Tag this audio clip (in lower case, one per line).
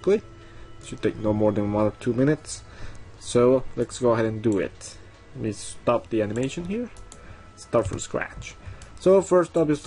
music
speech